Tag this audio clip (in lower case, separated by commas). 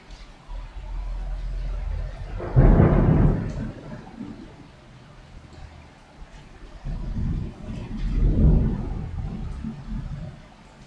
water, thunderstorm, thunder, rain